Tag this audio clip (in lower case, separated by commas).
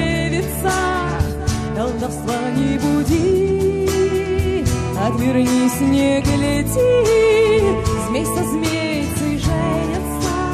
music